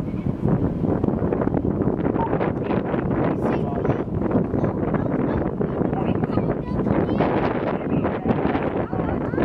A helicopter is passing by and wind is blowing